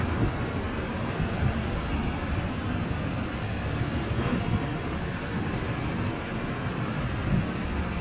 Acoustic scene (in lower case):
street